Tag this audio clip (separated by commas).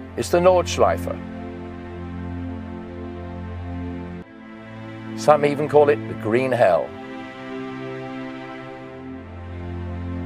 Music, Speech